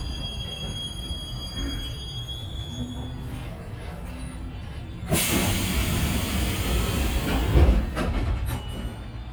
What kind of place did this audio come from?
subway train